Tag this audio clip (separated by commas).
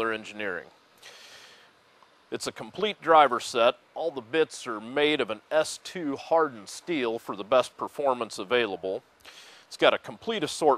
Speech